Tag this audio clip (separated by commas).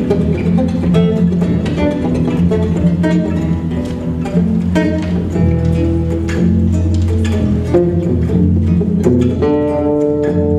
Guitar, Electric guitar, Acoustic guitar, Musical instrument, Music, Plucked string instrument, Strum